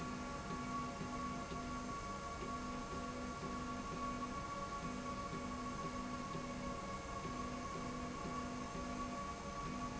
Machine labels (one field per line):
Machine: slide rail